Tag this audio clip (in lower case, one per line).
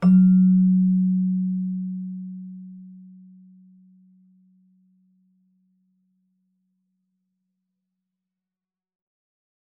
keyboard (musical)
music
musical instrument